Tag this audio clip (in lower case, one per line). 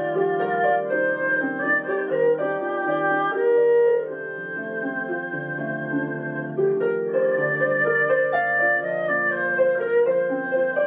playing erhu